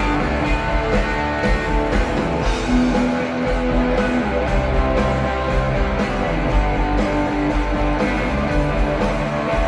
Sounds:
Music

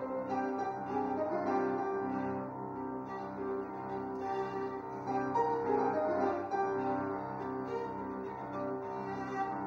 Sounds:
Musical instrument, Music, Violin

